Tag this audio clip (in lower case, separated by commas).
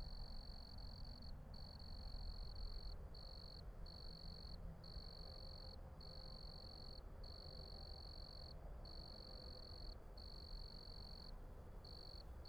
animal, cricket, insect, wild animals